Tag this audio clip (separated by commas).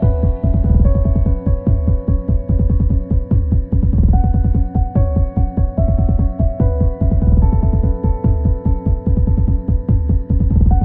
Music